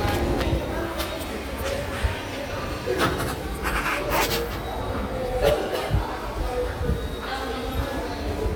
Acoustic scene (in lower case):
subway station